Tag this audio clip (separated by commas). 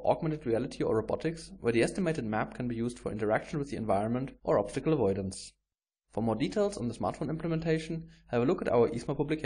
Speech